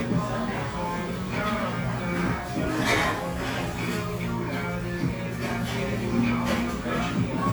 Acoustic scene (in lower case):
restaurant